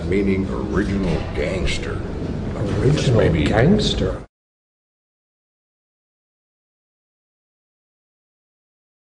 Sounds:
Speech

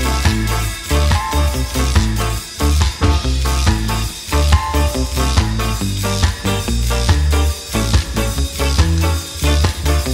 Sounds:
Music

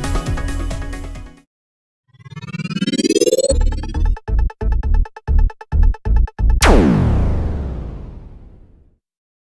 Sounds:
Drum machine, Music

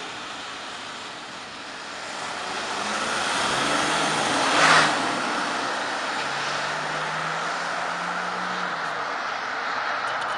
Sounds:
Motor vehicle (road), Vehicle, Truck

